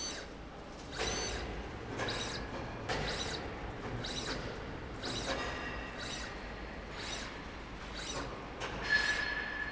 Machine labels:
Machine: slide rail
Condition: abnormal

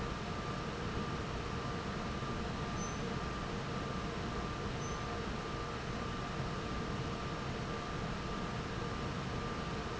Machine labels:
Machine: fan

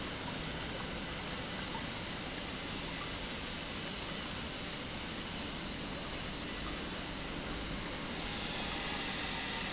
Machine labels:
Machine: pump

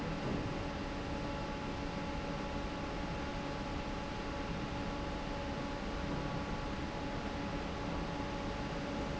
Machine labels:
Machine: fan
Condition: normal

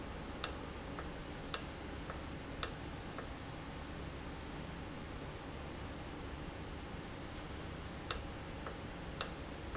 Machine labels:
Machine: valve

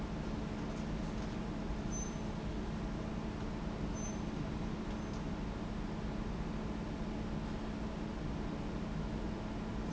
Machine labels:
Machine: fan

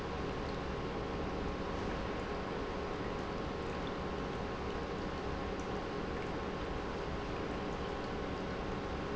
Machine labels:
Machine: pump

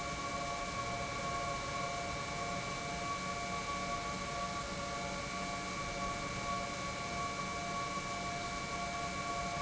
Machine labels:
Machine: pump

